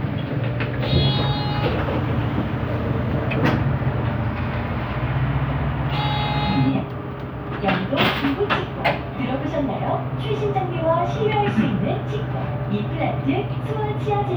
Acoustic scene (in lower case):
bus